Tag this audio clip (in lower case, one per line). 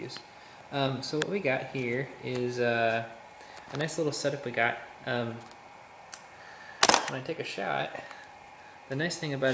camera
inside a small room
speech